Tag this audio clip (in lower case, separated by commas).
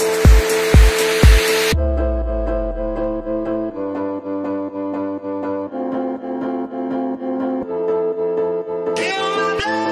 music